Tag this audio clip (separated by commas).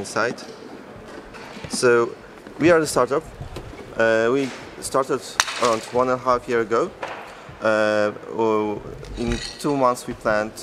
Speech